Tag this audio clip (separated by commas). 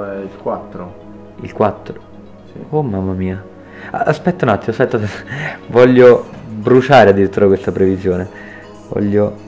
Music, Speech